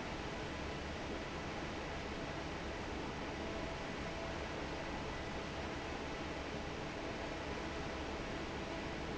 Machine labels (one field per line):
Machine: fan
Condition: normal